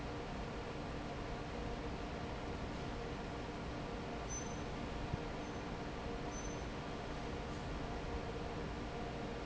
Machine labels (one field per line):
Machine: fan